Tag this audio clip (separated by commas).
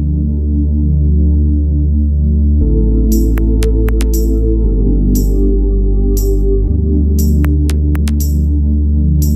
Gospel music, Music